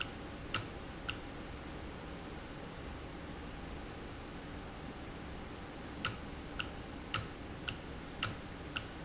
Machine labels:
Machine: valve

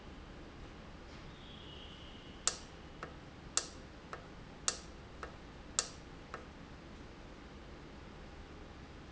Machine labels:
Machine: valve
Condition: normal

